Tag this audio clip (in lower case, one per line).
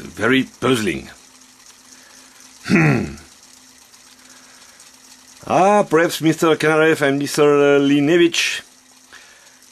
speech
inside a small room